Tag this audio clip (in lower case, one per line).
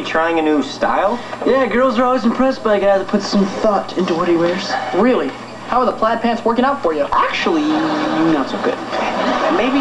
speech